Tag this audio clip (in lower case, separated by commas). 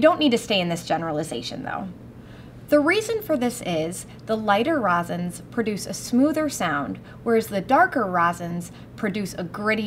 speech